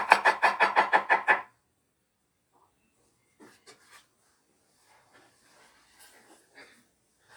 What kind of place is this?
kitchen